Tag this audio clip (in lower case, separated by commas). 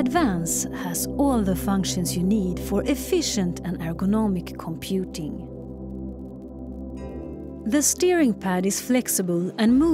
music, speech